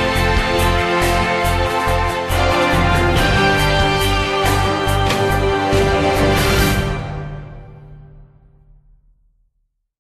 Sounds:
Exciting music, Music

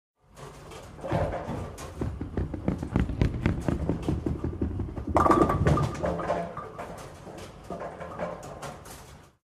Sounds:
Roll

